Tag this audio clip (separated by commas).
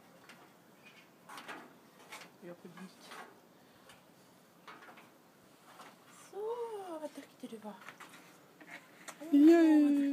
Speech